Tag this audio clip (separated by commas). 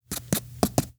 Writing, Domestic sounds